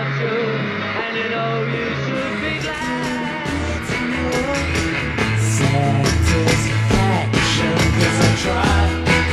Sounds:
heavy metal, music, rock music

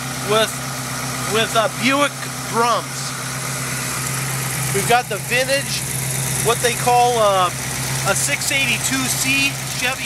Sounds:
vehicle, speech

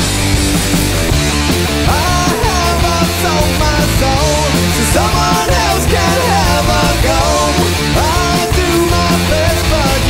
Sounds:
music, blues, rhythm and blues

